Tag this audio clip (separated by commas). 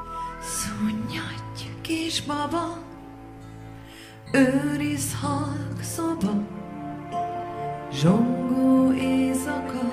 Music